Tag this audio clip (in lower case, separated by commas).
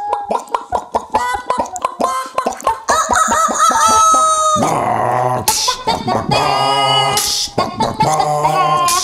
chicken clucking